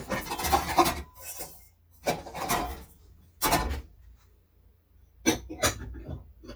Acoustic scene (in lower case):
kitchen